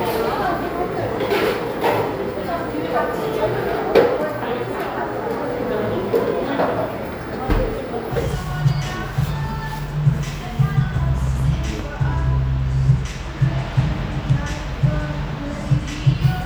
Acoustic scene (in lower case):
cafe